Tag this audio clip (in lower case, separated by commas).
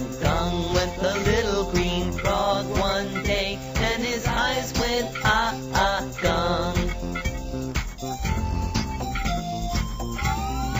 music